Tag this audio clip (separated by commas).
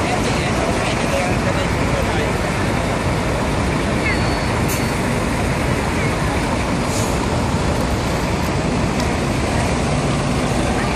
Speech